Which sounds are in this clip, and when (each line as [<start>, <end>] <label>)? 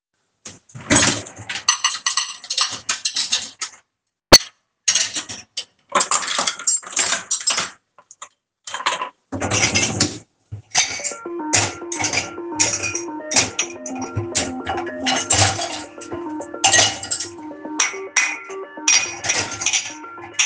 [0.38, 20.46] cutlery and dishes
[10.88, 20.46] phone ringing